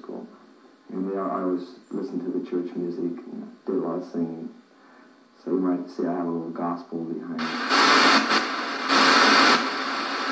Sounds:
Speech

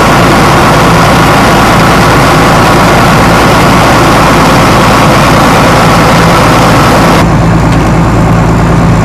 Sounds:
Fire

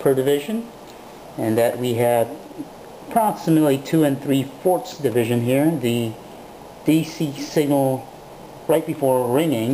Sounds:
Speech

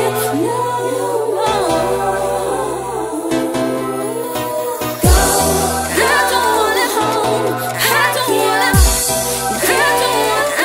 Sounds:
Music

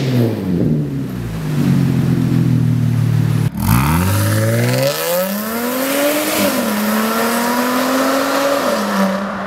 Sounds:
Car passing by

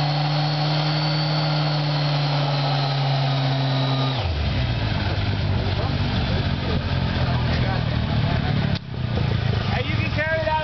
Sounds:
Vehicle, auto racing, Speech, Car

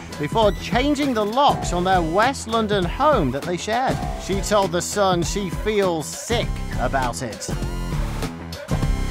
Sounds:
Speech, Music

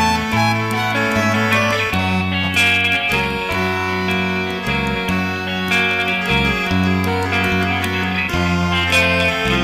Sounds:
Video game music, Music

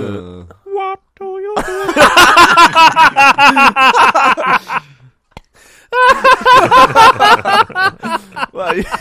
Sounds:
Speech

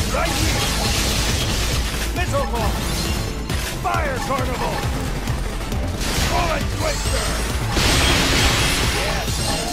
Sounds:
gunfire

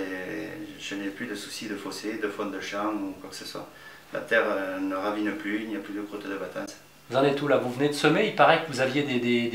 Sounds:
Speech

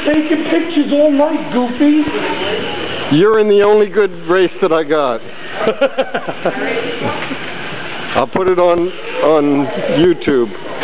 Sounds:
Speech

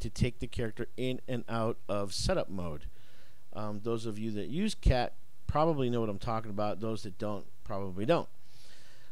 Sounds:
Speech

